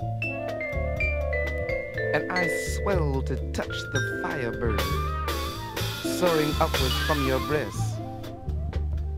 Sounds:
music, speech

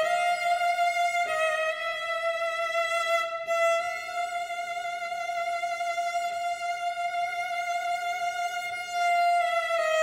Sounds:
music, fiddle, musical instrument

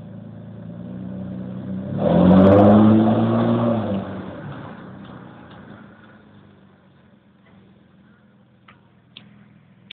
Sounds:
vehicle, car passing by, motor vehicle (road), car

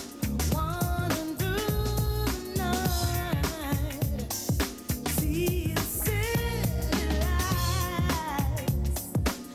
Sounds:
pop music, music

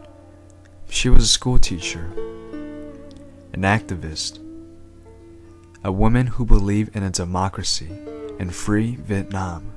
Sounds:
speech, music

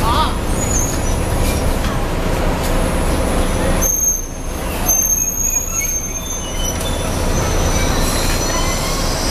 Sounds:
bicycle, roadway noise, speech, vehicle

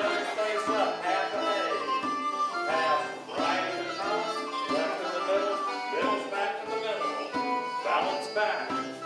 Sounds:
music, banjo

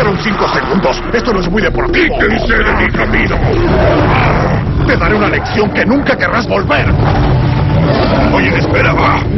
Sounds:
animal, wild animals, roaring cats, speech, music

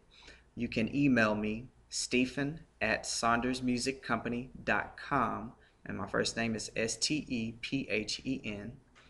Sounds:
speech

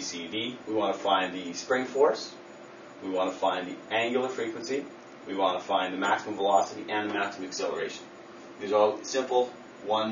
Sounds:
speech

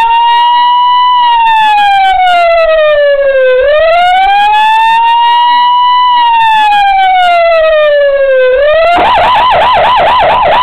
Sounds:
siren, emergency vehicle, police car (siren)

